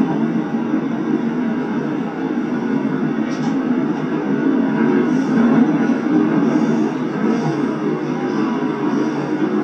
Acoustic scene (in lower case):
subway train